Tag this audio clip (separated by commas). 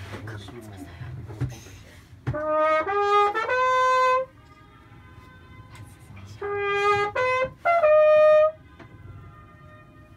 Music, Speech